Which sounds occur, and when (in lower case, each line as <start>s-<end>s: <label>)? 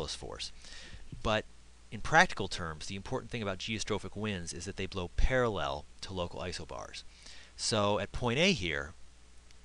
0.0s-0.5s: male speech
0.0s-9.6s: mechanisms
0.6s-1.0s: breathing
0.8s-0.9s: tap
1.1s-1.2s: tap
1.2s-1.4s: male speech
1.9s-5.8s: male speech
6.0s-7.0s: male speech
7.1s-7.5s: breathing
7.6s-8.9s: male speech
9.5s-9.6s: tick